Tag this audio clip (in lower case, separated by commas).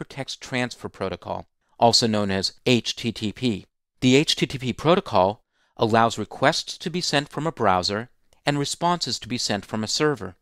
speech